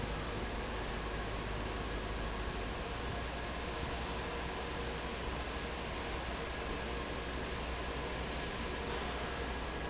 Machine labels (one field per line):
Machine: fan